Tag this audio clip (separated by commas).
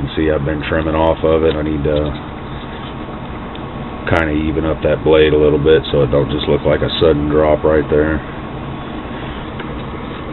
Speech